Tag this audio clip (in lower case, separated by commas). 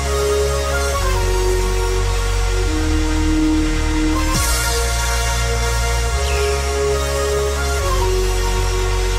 electronic music, dubstep, music